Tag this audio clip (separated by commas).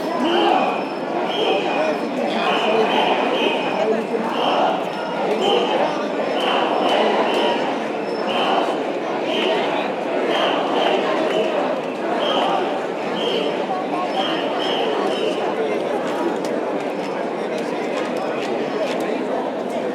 Human group actions, Crowd